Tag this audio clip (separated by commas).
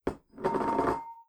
dishes, pots and pans, home sounds